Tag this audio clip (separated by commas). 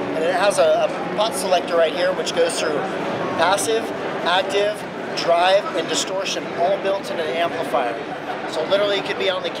Speech